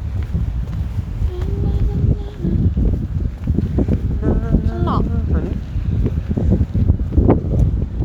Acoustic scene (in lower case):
street